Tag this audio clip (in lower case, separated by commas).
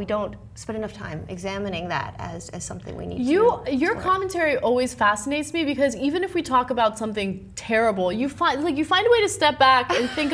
inside a small room, speech